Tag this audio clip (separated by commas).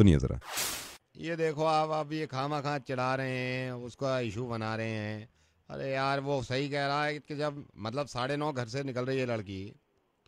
Speech